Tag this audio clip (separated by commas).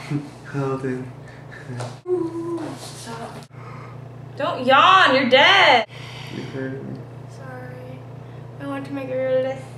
Speech